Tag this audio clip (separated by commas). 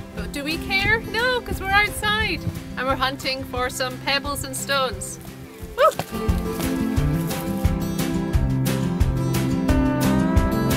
Music, Speech